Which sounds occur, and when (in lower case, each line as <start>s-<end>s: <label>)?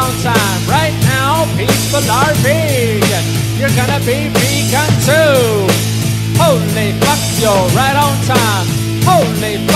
0.0s-1.4s: rapping
0.0s-9.7s: music
1.6s-3.2s: rapping
3.6s-5.7s: rapping
6.3s-8.6s: rapping
9.0s-9.7s: rapping